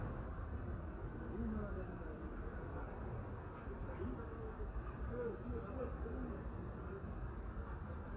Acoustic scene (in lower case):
residential area